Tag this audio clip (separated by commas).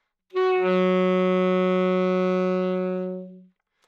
woodwind instrument, Music, Musical instrument